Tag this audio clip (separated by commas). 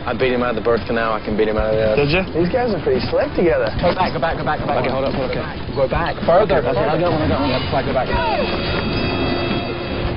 Speech, Music